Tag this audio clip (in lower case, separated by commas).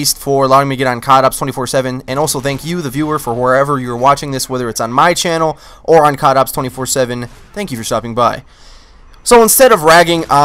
speech